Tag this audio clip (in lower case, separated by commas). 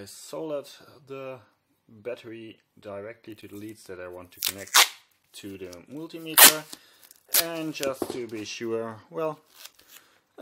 inside a small room, speech